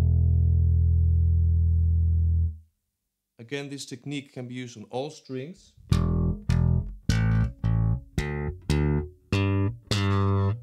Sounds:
Musical instrument, Bass guitar, Music, Speech, Plucked string instrument, Guitar

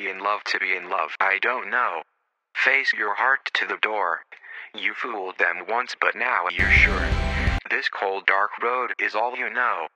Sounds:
Speech, Music

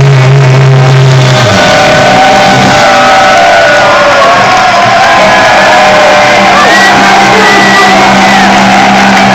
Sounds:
Drum, Musical instrument, Speech, Drum kit, Drum machine, Music

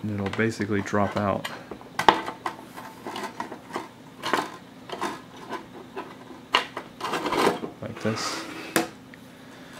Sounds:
dishes, pots and pans

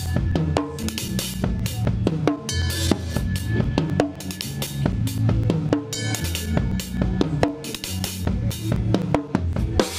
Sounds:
Musical instrument, Music, Bass drum, Drum, Drum kit

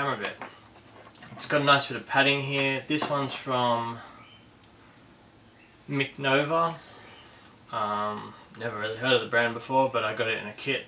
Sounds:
Speech

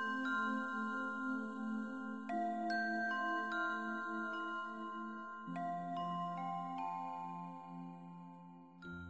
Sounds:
Music

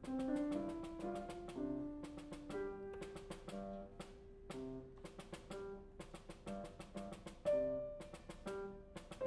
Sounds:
Music, Percussion

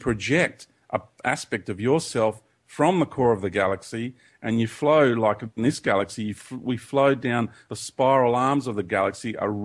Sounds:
Speech

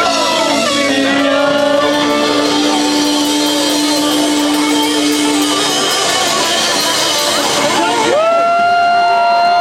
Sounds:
Singing, Crowd, Music, Musical instrument, Drum, Drum kit

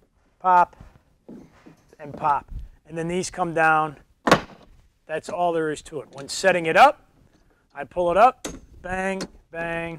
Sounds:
Speech

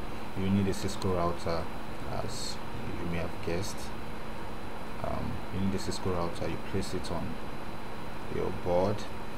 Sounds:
Speech

